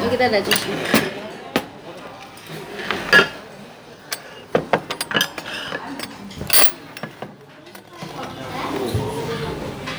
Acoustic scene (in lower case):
restaurant